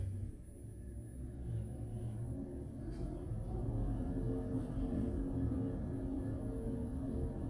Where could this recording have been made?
in an elevator